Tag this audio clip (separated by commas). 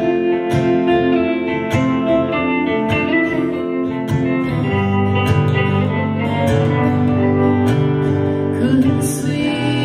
inside a large room or hall, Music, Singing